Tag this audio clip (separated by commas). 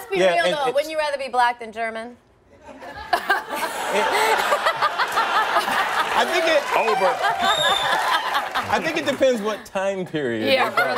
Speech, woman speaking